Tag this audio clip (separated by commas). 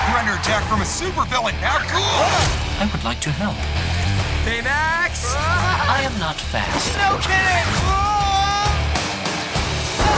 Speech, Music